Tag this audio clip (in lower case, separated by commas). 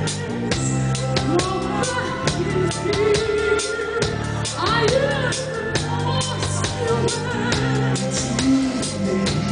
drum kit, snare drum, rimshot, drum, percussion, bass drum